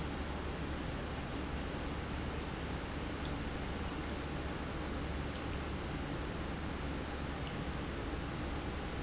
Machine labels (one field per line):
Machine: pump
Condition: normal